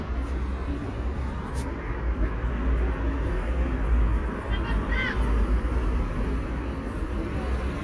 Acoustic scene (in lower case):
residential area